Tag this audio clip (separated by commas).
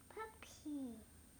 Human voice, Speech, kid speaking